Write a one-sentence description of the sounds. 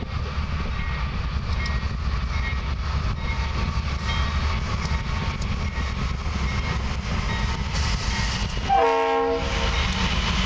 Clickety clank of a rail followed by blowing of horn